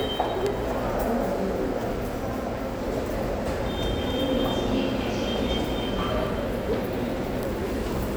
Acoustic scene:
subway station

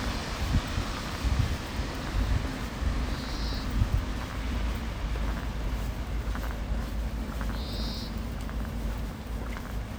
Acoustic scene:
street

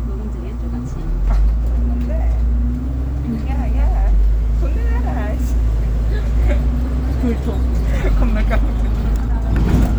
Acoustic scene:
bus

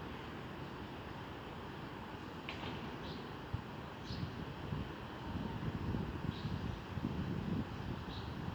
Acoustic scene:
residential area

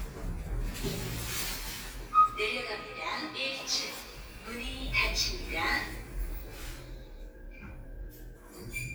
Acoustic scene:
elevator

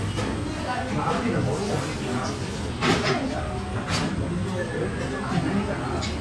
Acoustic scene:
restaurant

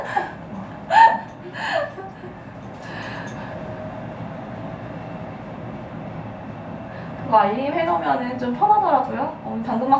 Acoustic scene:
elevator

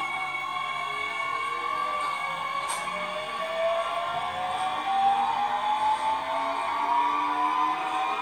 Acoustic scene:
subway train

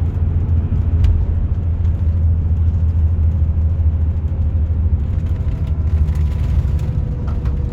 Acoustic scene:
car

